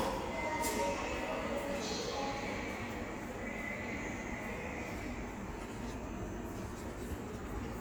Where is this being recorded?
in a subway station